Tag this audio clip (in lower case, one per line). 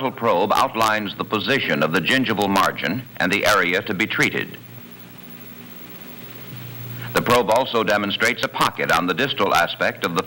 speech